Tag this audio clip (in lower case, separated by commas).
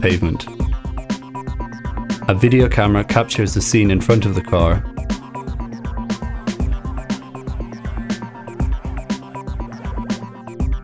music, speech